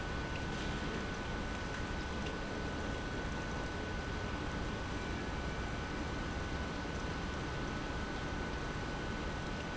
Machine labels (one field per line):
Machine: pump